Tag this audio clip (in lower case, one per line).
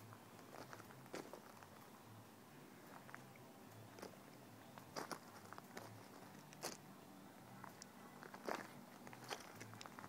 crackle